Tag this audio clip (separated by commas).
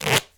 home sounds, Packing tape